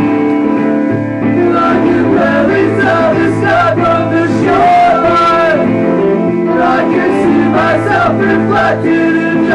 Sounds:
Music

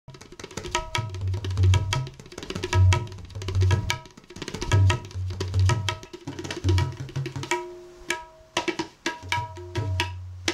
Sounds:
playing tabla

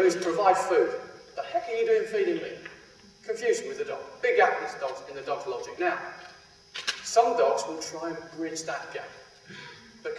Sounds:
Speech

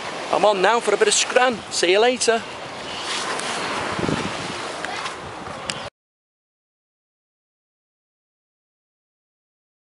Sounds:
Speech, outside, urban or man-made

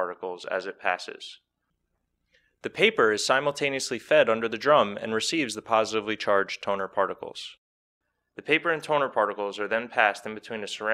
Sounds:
Speech

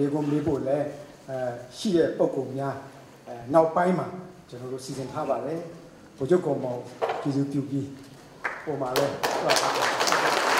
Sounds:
Narration, man speaking, Speech

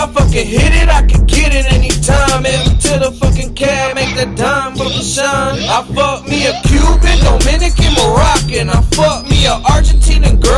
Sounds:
Music

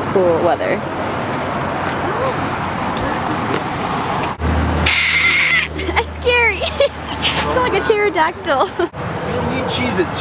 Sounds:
Speech, Car, outside, urban or man-made

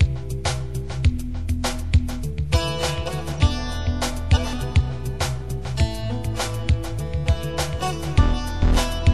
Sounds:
Soul music, Music

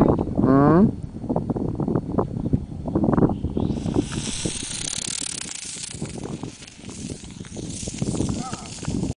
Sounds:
Speech

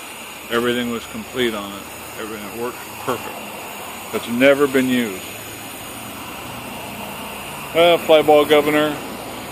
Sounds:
Speech

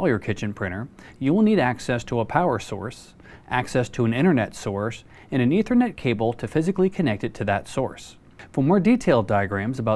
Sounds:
Speech

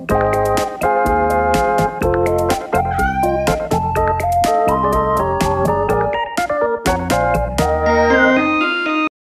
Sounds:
Meow, Music, Cat

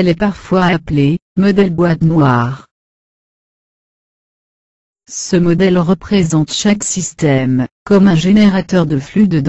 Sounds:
Speech

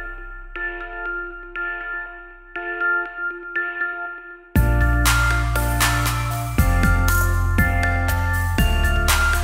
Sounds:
Music

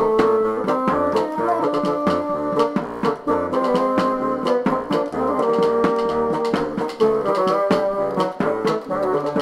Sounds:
playing bassoon

